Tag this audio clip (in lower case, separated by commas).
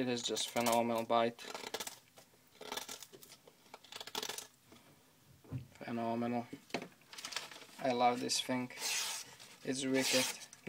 inside a small room, speech